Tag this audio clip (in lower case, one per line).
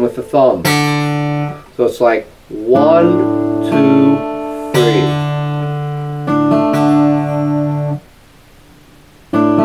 acoustic guitar
music
strum
guitar
speech
plucked string instrument
musical instrument